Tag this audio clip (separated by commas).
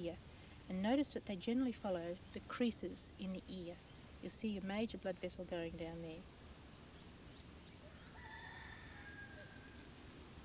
Speech